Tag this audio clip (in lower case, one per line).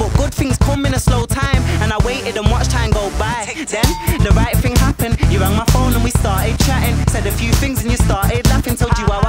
exciting music
music